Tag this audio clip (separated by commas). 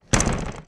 Slam, Door, home sounds